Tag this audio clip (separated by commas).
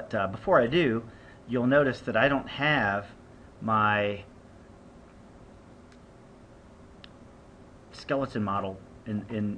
Speech